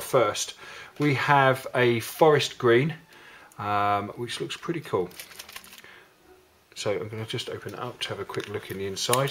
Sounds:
speech

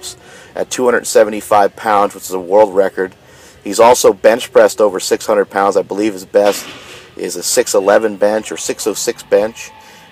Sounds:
speech

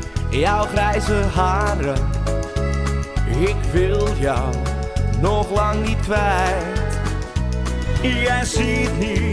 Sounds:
music

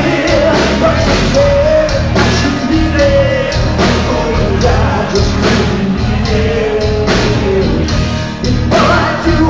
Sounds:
music

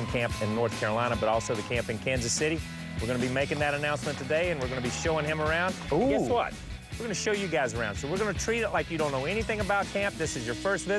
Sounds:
music
speech

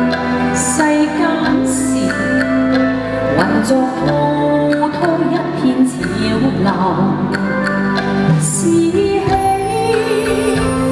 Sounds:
singing
music of asia
music

